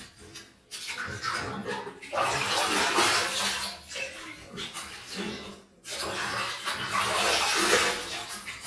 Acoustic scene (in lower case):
restroom